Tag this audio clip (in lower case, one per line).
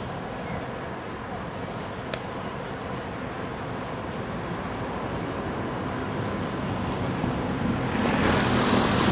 rail transport
vehicle
railroad car
train